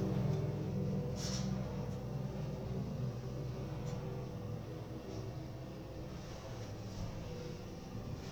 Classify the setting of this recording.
elevator